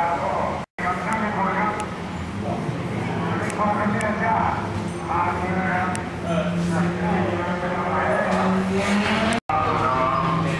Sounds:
car passing by, vehicle, speech, motor vehicle (road), car

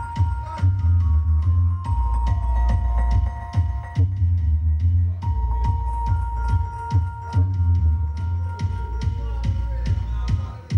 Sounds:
music

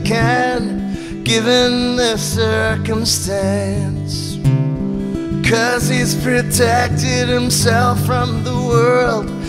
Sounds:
music, tender music

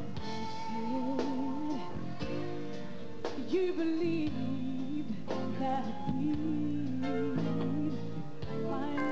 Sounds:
music

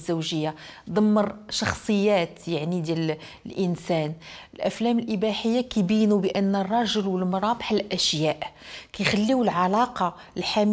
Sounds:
speech

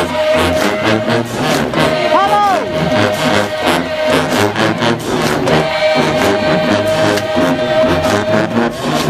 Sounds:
applause, sound effect, music, crowd

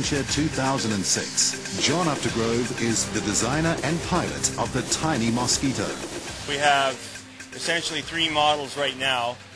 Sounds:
speech, vehicle, music

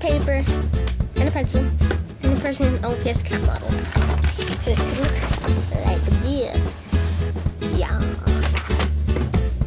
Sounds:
speech, music

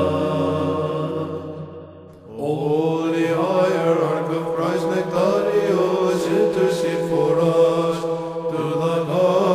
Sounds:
chant, music

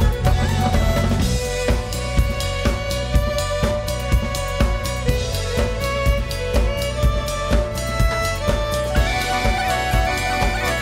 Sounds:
music

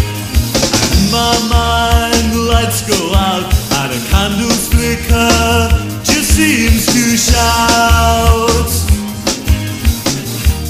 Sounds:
music, rock and roll

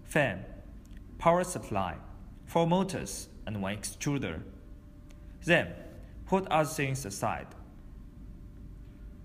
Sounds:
speech

